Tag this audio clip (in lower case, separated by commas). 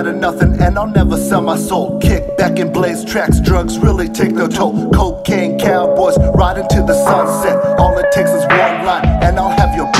rapping, music, hip hop music